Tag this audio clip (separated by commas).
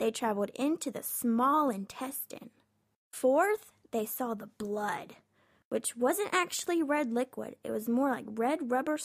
Speech